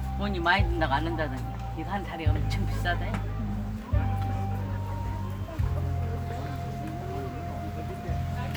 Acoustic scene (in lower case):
park